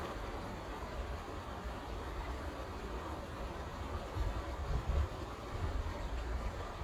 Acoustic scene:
park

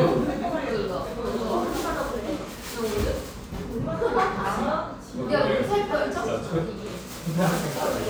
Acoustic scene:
cafe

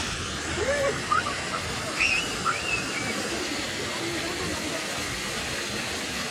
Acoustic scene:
park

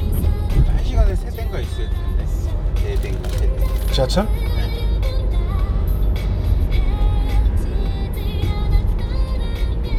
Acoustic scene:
car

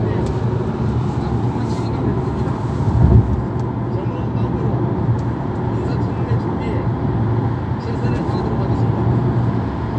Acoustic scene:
car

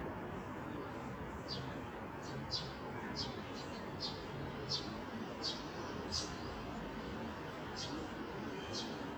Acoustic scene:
residential area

